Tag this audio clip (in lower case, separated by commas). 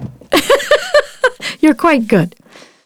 laughter, human voice, giggle